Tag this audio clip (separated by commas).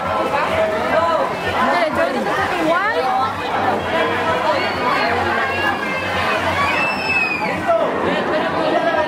Speech, Chatter